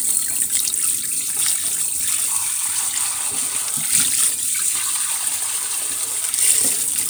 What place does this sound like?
kitchen